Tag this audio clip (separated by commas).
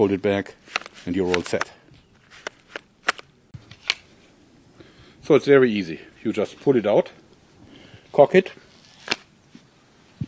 Speech